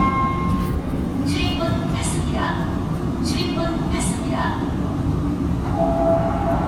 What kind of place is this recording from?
subway train